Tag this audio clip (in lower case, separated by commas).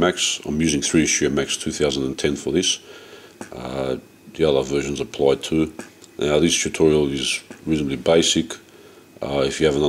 speech